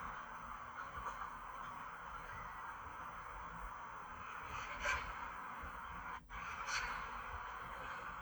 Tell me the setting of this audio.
park